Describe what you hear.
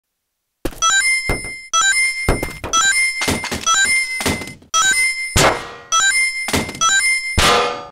Loud ring beep with loud bangs throughout